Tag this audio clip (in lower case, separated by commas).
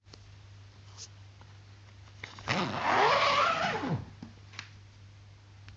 domestic sounds, zipper (clothing)